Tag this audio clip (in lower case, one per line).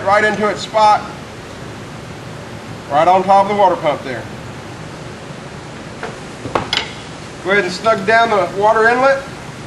speech